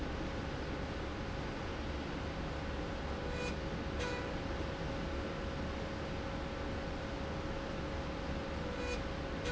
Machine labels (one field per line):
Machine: slide rail